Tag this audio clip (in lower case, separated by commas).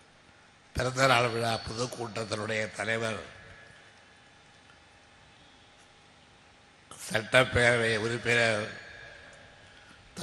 narration, speech, man speaking